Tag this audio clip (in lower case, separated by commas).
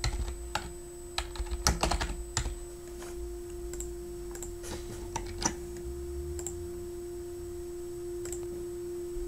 computer keyboard